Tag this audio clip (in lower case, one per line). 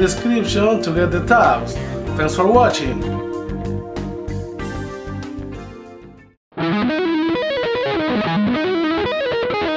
speech
acoustic guitar
musical instrument
strum
plucked string instrument
music
guitar
electric guitar